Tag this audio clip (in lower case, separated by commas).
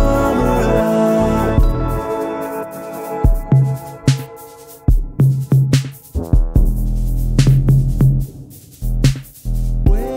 music, sampler, drum machine